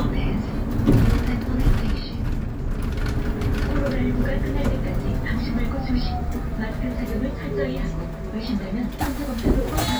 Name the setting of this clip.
bus